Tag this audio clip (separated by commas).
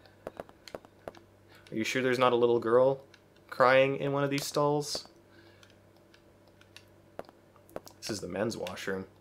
Speech